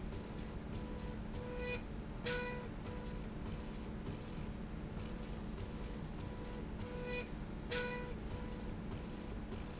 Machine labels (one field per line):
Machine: slide rail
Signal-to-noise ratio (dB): 0 dB